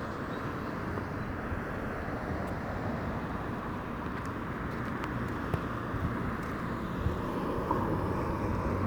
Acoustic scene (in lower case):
residential area